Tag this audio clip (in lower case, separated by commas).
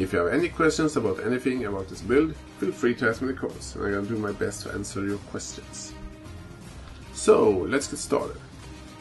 music, speech